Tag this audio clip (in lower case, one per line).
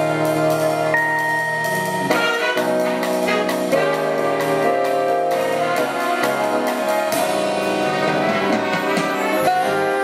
rhythm and blues
music
independent music